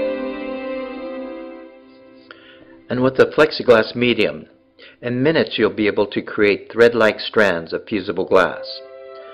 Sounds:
music, speech

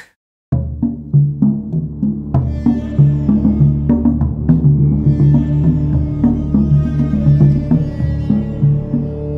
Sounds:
music

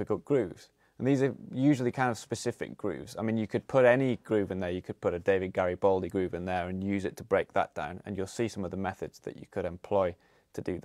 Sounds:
speech

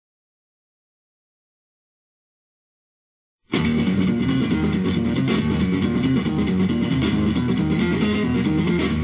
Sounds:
music, tapping (guitar technique), electric guitar

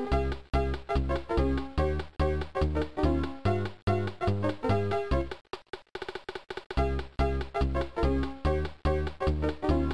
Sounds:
music, video game music

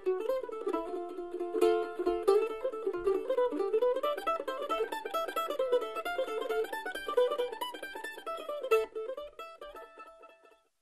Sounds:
playing mandolin

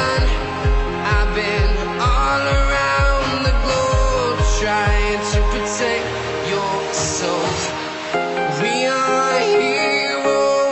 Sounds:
music

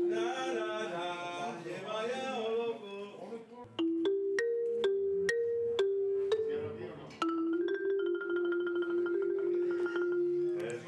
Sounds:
percussion, music, song

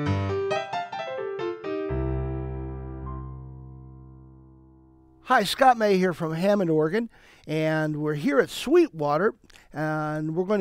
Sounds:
music, speech

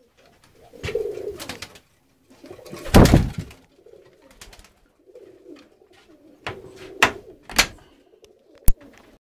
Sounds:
bird, animal, coo

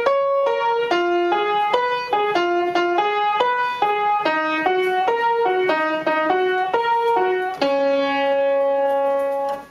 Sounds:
music

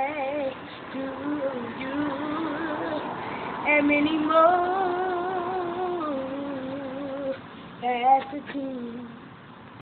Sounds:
male singing

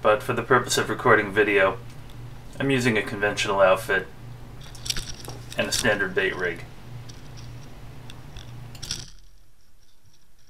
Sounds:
speech

